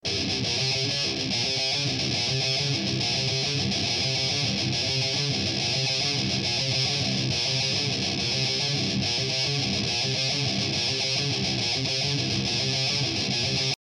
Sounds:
guitar, music, musical instrument, plucked string instrument

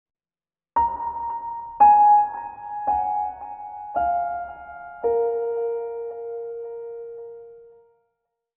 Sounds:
piano, music, keyboard (musical), musical instrument

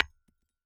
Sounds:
tap

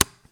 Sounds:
tick, tap

